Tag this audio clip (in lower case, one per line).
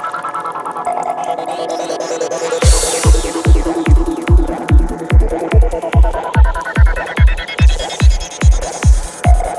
throbbing